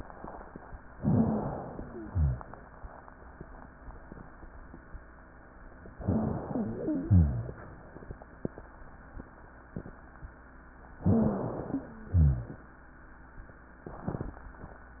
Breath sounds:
0.91-1.86 s: inhalation
1.03-1.43 s: wheeze
1.86-2.48 s: exhalation
1.86-2.48 s: wheeze
5.97-7.06 s: inhalation
5.97-7.06 s: wheeze
7.06-7.48 s: exhalation
7.06-7.48 s: wheeze
11.03-11.53 s: wheeze
11.03-11.83 s: inhalation
11.69-12.13 s: wheeze
12.14-12.58 s: exhalation
12.14-12.58 s: wheeze

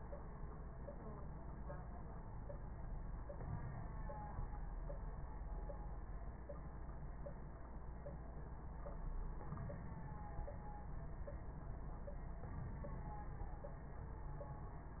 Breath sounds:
3.26-4.42 s: inhalation
9.49-10.40 s: inhalation
12.49-13.53 s: inhalation

